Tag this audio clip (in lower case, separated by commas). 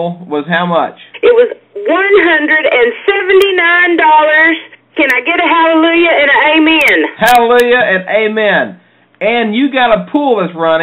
speech